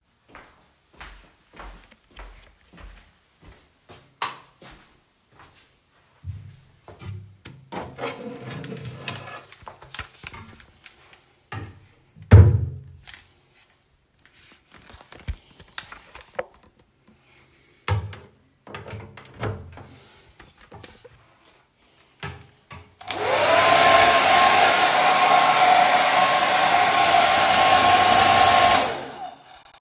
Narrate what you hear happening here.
I go into the bathroom, I turn on the light and opened up a drawer. Take out my hairdryer out, closing the drawer and turning the hairdryer on.